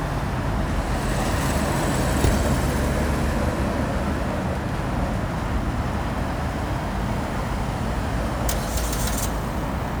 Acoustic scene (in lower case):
street